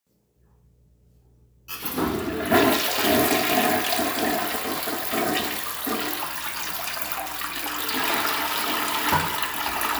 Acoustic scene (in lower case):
restroom